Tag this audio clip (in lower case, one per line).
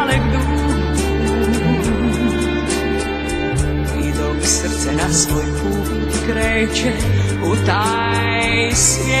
christian music